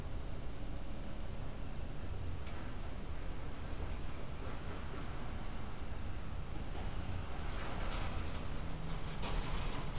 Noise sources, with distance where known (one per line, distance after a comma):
engine of unclear size, near